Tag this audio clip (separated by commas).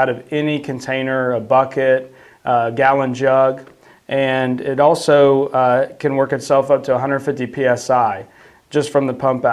Speech